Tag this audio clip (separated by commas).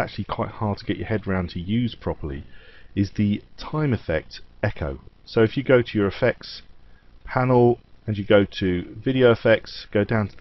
Speech